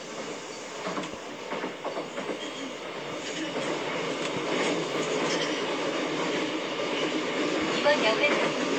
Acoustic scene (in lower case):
subway train